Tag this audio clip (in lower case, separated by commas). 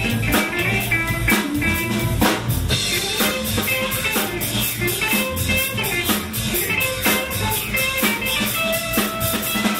strum, plucked string instrument, music, electric guitar, guitar, musical instrument